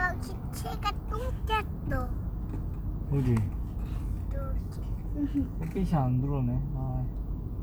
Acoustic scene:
car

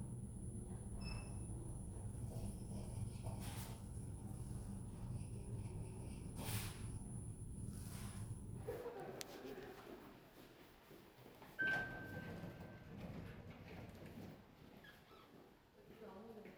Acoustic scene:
elevator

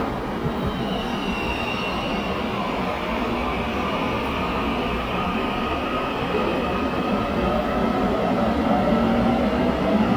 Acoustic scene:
subway station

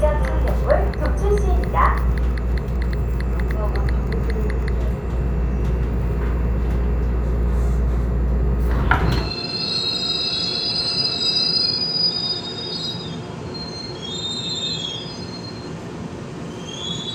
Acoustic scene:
subway train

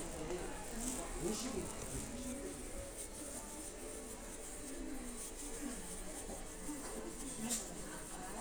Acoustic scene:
crowded indoor space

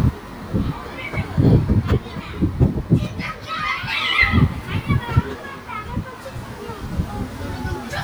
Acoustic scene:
park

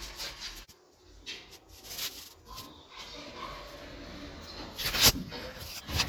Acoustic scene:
elevator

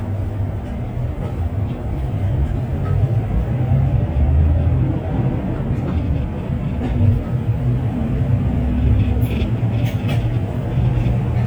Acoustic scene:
bus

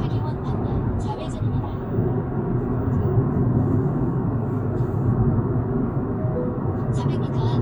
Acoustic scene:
car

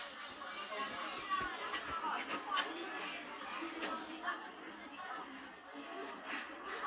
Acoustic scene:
restaurant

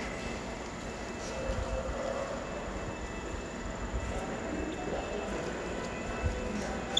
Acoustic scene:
subway station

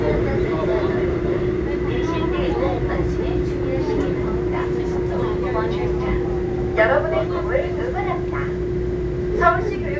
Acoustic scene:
subway train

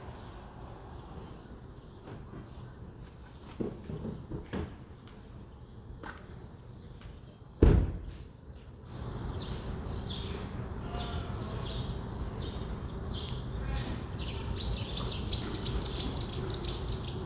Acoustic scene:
residential area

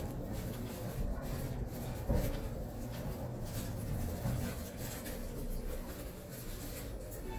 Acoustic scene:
elevator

